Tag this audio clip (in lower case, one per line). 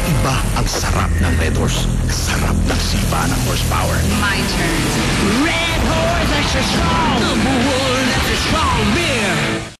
music
speech